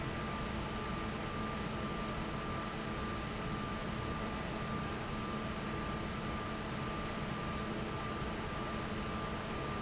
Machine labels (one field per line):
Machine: fan